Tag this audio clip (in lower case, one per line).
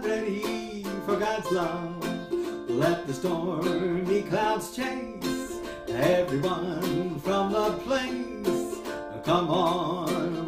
music
male singing